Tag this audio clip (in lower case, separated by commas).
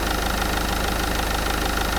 engine